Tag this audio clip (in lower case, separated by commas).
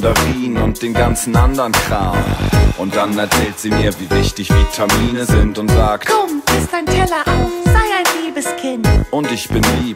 music